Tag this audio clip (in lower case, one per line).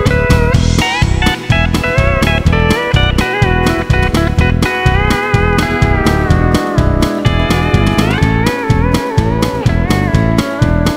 music
plucked string instrument